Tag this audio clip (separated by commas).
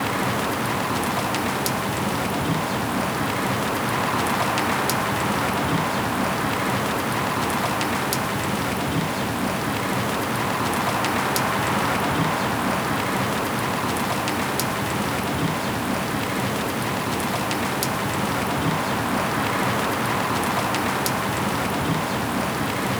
Water, Rain